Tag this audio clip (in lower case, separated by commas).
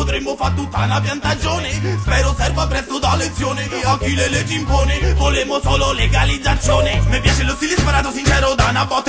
music